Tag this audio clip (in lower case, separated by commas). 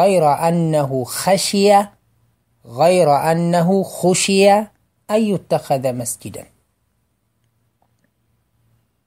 speech